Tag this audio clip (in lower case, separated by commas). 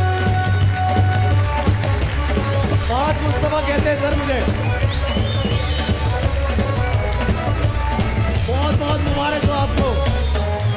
music, speech